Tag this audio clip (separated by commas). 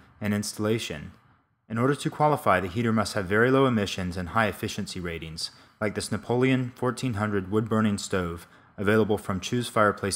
Speech